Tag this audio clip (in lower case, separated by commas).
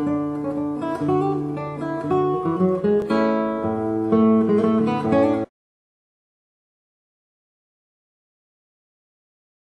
guitar, musical instrument, music, acoustic guitar, plucked string instrument